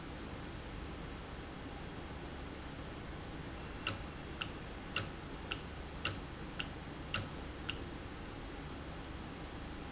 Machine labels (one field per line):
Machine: valve